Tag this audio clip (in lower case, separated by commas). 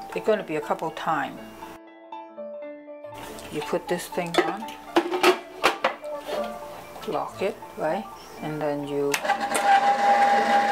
speech, music